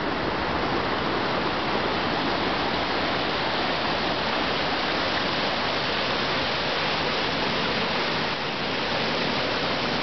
A waterfall is pouring into a stream